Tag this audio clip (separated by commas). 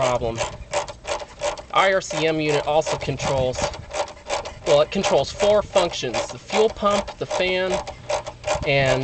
Mechanisms